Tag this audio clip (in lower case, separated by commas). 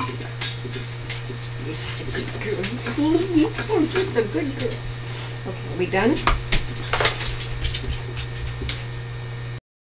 speech